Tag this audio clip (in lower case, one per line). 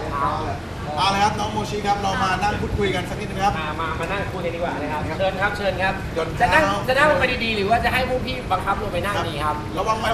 speech